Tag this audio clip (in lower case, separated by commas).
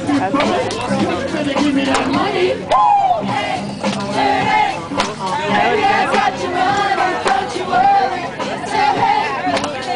female singing, music, male singing, speech